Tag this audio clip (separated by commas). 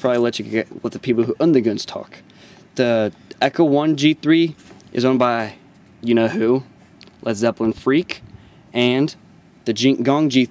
Speech